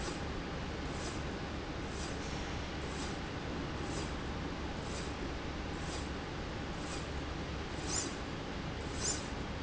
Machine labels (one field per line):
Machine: slide rail